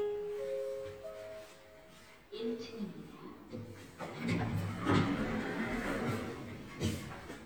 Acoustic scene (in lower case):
elevator